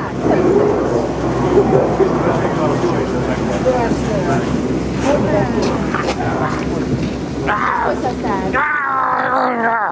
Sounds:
Speech, footsteps

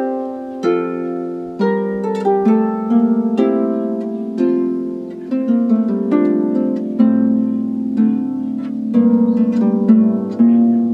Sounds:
Rhythm and blues, Soul music, Tender music, Music

